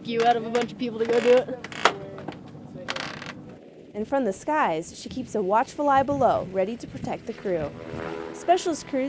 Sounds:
Vehicle, Speech

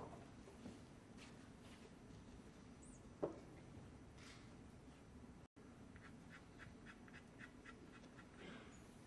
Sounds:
Speech

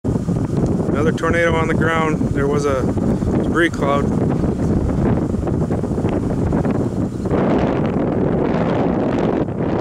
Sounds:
wind noise, Speech, Wind, Wind noise (microphone)

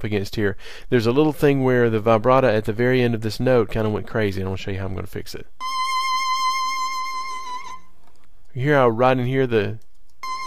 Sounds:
Speech, Music

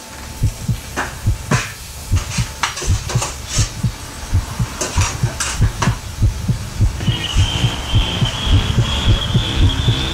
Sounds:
inside a large room or hall

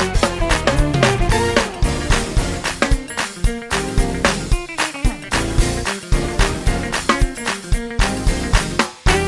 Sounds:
Music

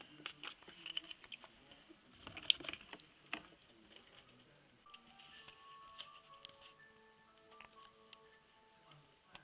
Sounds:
Music

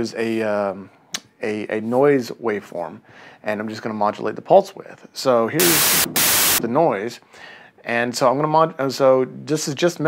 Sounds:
Speech

